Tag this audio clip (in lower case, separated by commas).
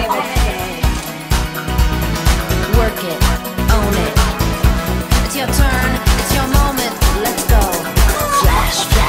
fowl, rooster, cluck